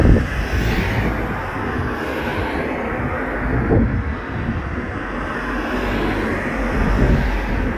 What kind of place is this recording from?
street